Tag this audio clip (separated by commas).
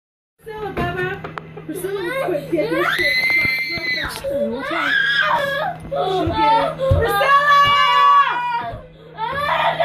people screaming, Screaming, Speech